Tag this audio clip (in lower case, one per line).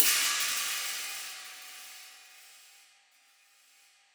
hi-hat
cymbal
percussion
musical instrument
music